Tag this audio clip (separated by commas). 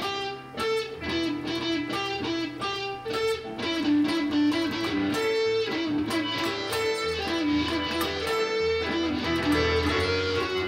Guitar, Musical instrument, Electric guitar, Plucked string instrument, Music